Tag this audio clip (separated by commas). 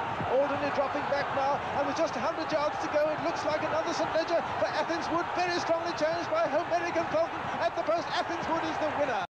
Speech